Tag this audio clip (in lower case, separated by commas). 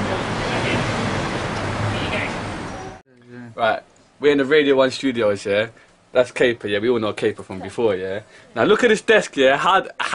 speech